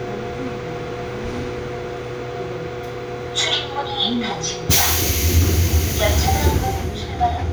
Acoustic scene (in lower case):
subway train